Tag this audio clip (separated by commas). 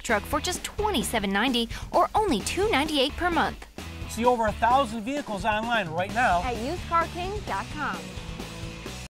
Speech, Music